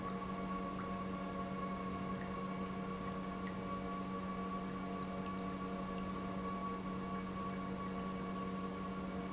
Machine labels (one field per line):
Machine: pump